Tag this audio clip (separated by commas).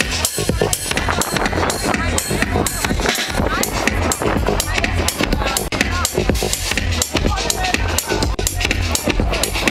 Speech, Vehicle, Water vehicle, Music